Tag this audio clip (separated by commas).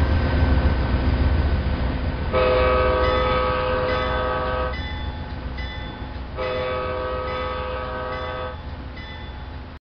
Train, Train whistle, Railroad car